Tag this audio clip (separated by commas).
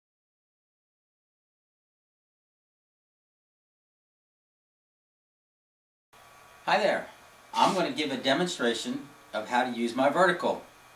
Speech